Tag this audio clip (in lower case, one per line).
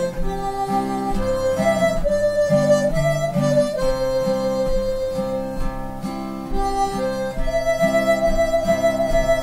music
tender music